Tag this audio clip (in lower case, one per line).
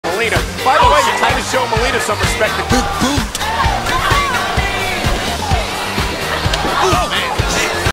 music
speech